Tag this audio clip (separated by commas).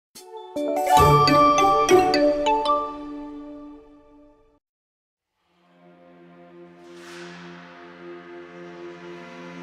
Jingle